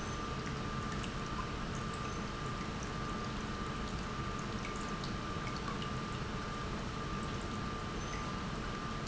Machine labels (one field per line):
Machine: pump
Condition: normal